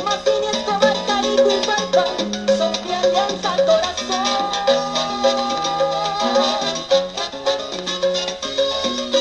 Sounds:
music
salsa music

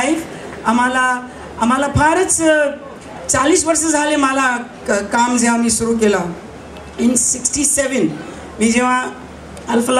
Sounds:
speech
female speech
monologue

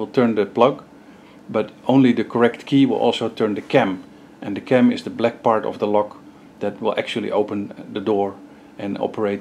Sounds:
speech

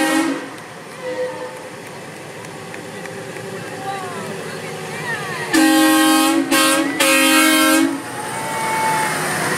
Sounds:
truck
vehicle

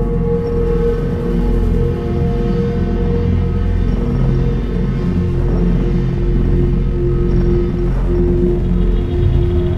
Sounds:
music
soundtrack music

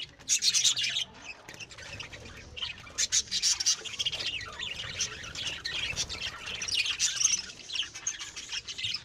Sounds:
tweeting

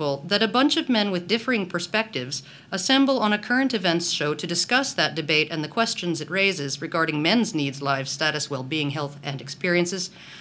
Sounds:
speech

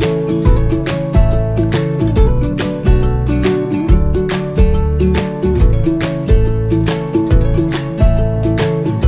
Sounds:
music

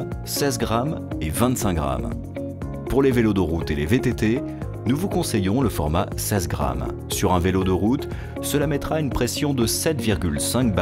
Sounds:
music
speech

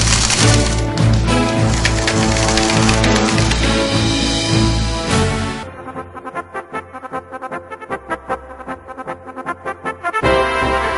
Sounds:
music

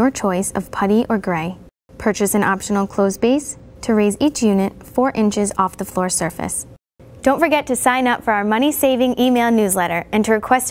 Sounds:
speech

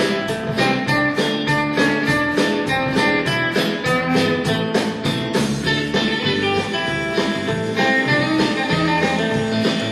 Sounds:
music

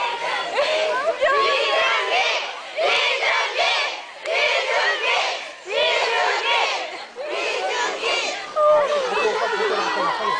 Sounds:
female speech
speech

